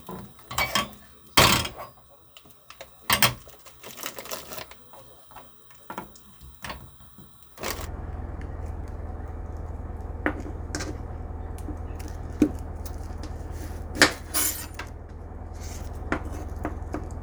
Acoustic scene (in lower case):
kitchen